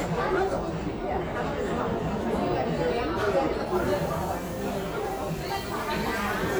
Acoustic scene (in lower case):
crowded indoor space